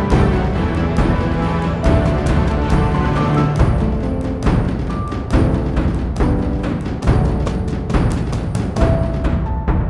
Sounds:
music

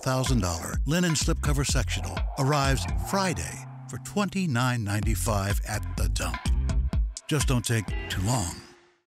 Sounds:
music, speech

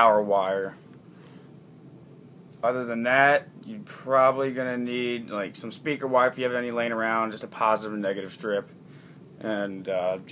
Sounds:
speech

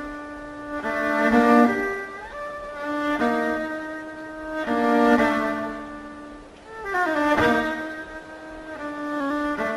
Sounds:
music, musical instrument, fiddle

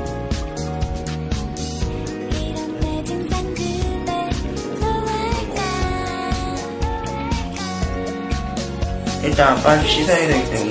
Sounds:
music, speech

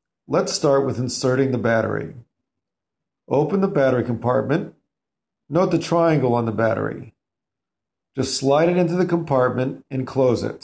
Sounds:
speech

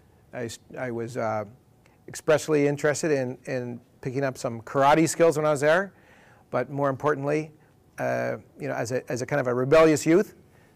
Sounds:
speech

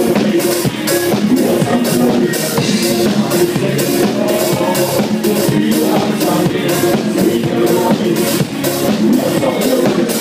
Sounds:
music, sound effect

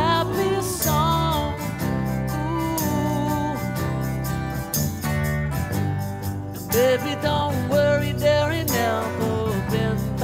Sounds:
music

